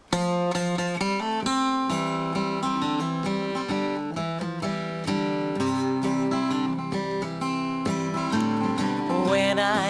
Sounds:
Music, Country

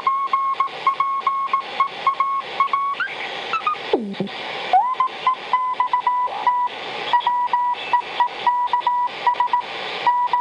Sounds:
Radio

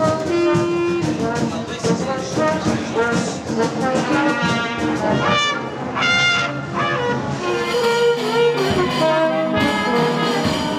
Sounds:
Speech, Traditional music, Music

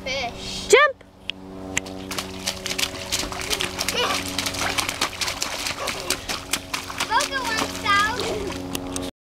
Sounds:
Water, Slosh, Speech

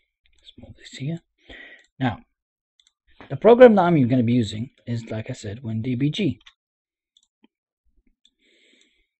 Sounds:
Speech, Clicking

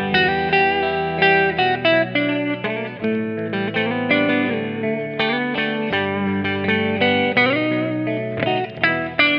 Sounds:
Guitar, Music, Musical instrument

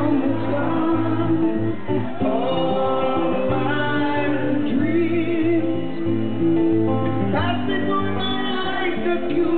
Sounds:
Music

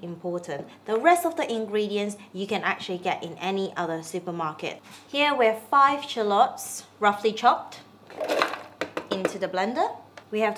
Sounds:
Speech

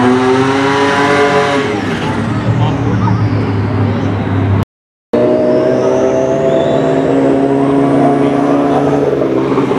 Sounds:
Vehicle, Speech, auto racing, outside, urban or man-made, Car

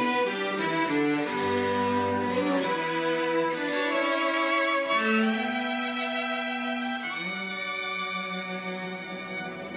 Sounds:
Violin

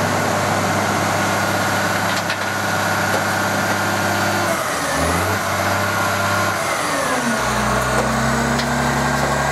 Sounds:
Vehicle, Truck

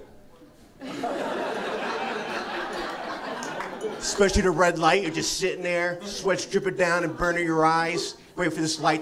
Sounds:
Speech

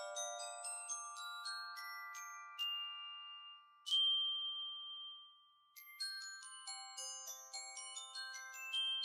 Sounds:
Mallet percussion, Glockenspiel, xylophone

